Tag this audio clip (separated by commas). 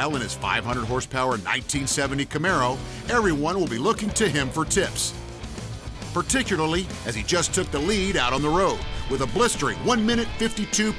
Speech, Music